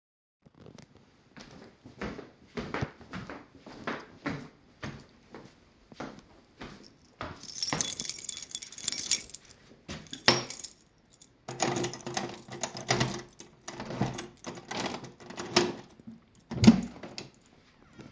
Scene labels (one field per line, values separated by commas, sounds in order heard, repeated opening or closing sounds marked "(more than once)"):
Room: hallway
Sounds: footsteps, keys, door